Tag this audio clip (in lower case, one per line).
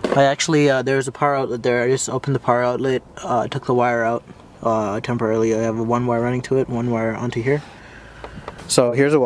speech